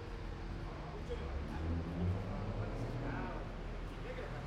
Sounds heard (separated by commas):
bus engine accelerating, people talking, bus